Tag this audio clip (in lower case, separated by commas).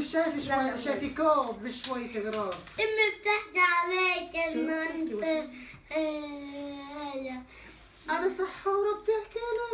inside a small room, speech